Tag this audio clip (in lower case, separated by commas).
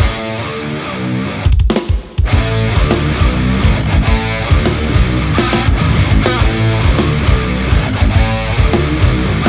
electric guitar, musical instrument, music, plucked string instrument